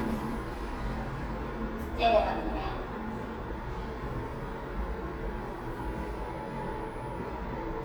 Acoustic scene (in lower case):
elevator